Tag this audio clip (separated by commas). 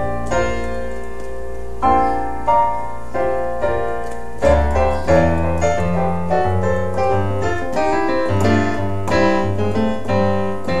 Jazz, Music